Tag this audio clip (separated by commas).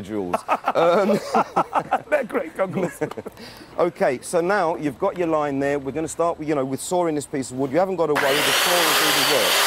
Tools, Power tool